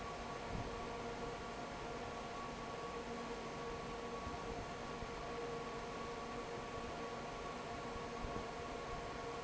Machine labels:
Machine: fan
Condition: normal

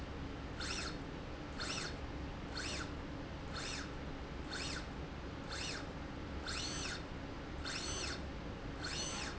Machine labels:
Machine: slide rail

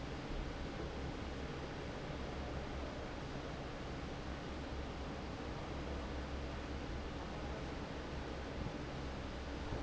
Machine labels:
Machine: fan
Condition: normal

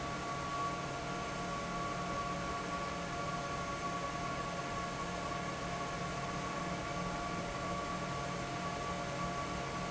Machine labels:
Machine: fan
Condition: abnormal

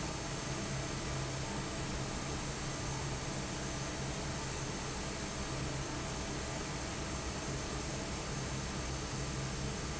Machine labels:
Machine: fan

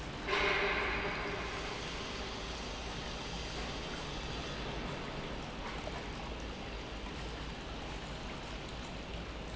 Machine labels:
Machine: pump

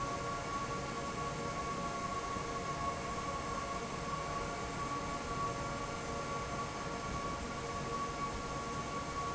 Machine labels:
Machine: fan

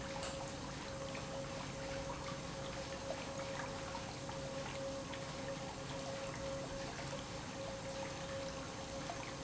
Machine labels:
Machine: pump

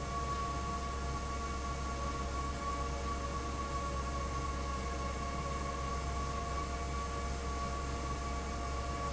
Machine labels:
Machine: fan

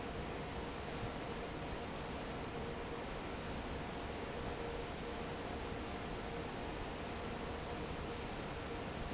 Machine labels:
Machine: fan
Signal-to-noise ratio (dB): 0 dB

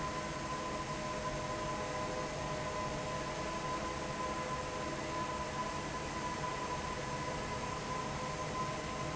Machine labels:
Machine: fan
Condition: normal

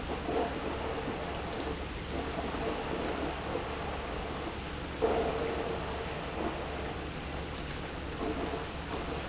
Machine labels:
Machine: pump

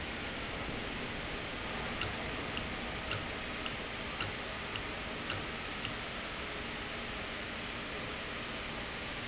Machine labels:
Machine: valve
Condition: normal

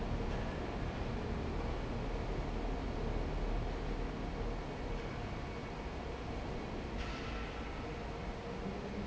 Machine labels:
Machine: fan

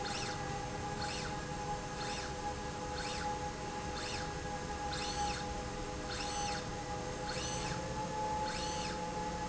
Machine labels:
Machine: slide rail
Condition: normal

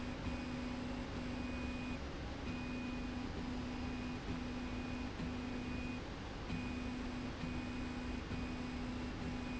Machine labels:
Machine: slide rail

